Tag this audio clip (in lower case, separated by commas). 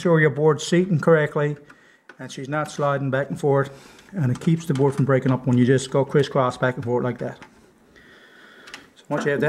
speech